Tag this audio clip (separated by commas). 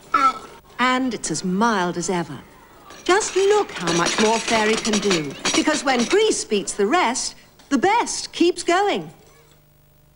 Speech